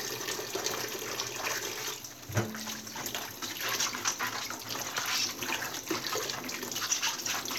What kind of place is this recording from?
kitchen